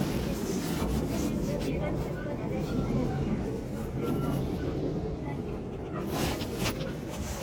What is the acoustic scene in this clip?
subway train